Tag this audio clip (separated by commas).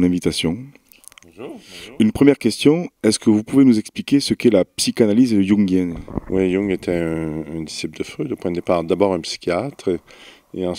Speech